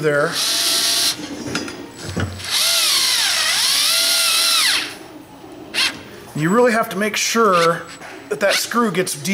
A man speaking followed by vibrations of a power tool